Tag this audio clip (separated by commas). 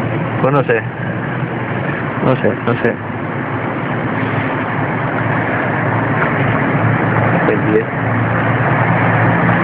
Speech, inside a small room